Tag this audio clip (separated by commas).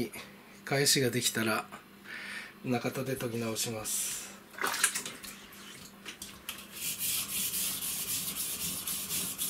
sharpen knife